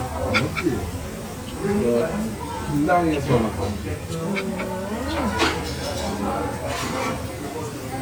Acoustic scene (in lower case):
restaurant